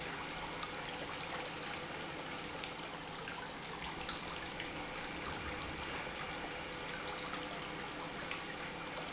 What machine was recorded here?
pump